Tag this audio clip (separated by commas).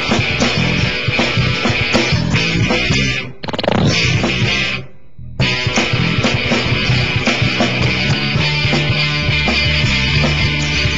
Exciting music, Music